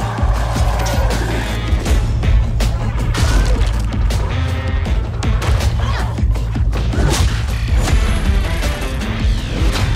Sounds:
music

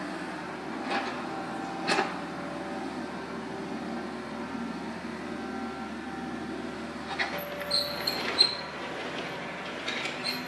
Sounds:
vehicle, outside, rural or natural

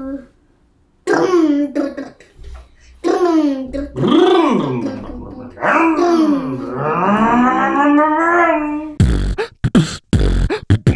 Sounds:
beatboxing

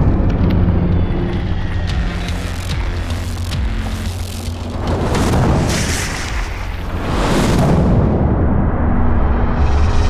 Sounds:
eruption, explosion, music

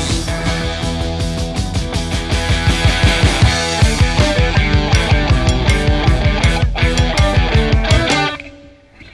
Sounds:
music, grunge

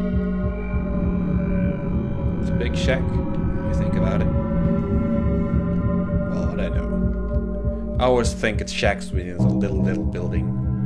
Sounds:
music, speech

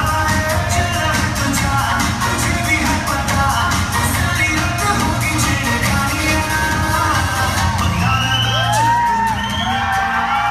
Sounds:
inside a large room or hall, music

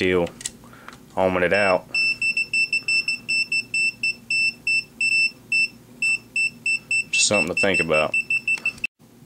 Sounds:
speech, beep

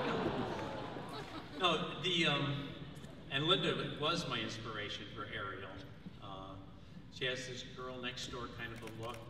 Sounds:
narration, man speaking, speech

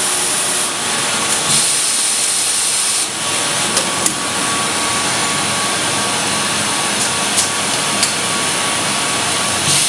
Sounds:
steam, hiss

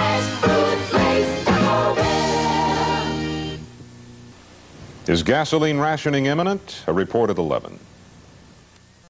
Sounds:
music, speech

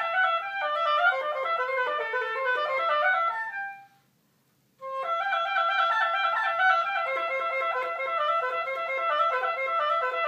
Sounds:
playing oboe

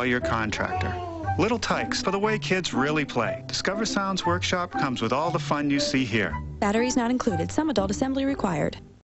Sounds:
music, speech

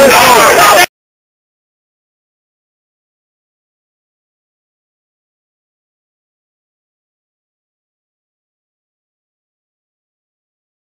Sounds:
speech

